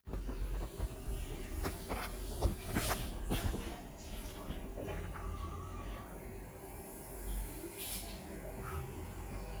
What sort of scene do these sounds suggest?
restroom